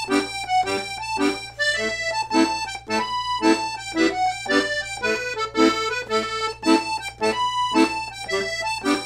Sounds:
playing accordion

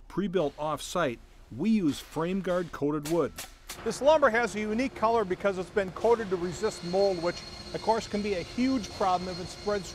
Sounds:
speech

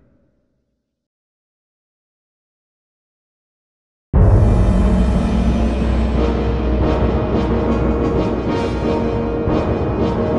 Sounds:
music

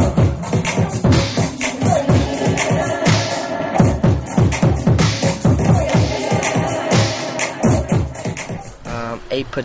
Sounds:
music
inside a large room or hall
speech
scratching (performance technique)

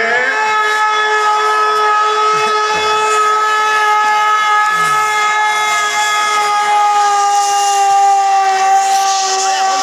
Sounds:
civil defense siren

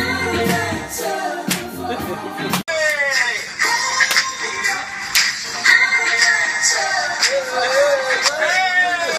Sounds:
music
soundtrack music

